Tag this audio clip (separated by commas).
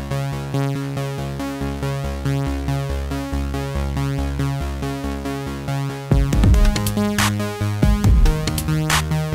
Music